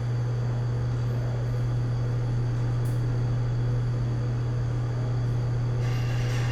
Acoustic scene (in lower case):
elevator